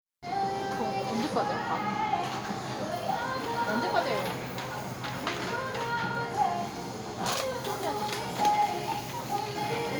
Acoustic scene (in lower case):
crowded indoor space